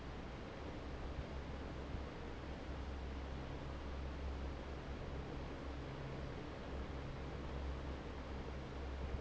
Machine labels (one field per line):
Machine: fan